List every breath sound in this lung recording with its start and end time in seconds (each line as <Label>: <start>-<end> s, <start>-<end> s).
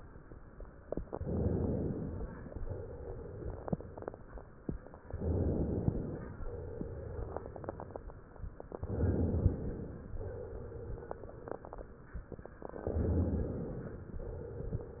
Inhalation: 1.06-2.34 s, 5.10-6.38 s, 8.84-10.11 s, 12.90-14.18 s